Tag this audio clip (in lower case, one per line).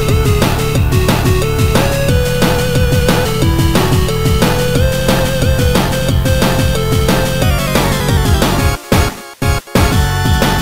music